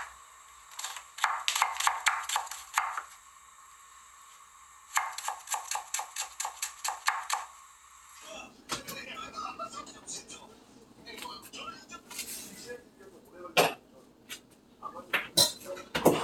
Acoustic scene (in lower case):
kitchen